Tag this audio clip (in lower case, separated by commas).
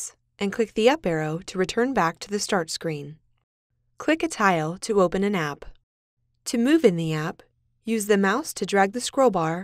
speech